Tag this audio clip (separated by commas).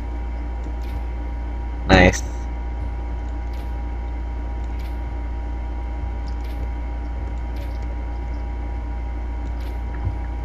Speech